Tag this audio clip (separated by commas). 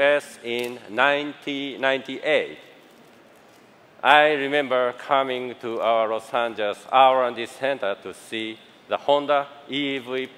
Speech